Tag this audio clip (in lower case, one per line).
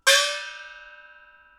musical instrument
music
gong
percussion